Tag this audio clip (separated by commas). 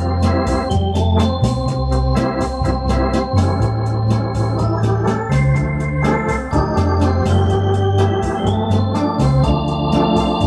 playing hammond organ